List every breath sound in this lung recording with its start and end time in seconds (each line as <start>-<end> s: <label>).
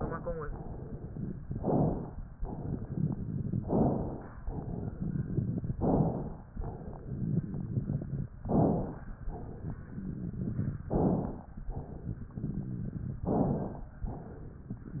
1.52-2.20 s: inhalation
2.35-3.61 s: exhalation
2.35-3.61 s: crackles
3.64-4.33 s: inhalation
4.48-5.73 s: exhalation
4.48-5.73 s: crackles
5.81-6.49 s: inhalation
6.58-8.29 s: exhalation
6.58-8.29 s: crackles
8.46-9.15 s: inhalation
9.28-10.84 s: exhalation
9.28-10.84 s: crackles
10.91-11.59 s: inhalation
11.69-13.24 s: exhalation
11.69-13.24 s: crackles
13.30-13.98 s: inhalation
14.13-15.00 s: exhalation
14.13-15.00 s: crackles